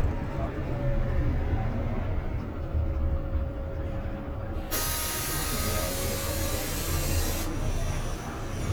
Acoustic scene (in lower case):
bus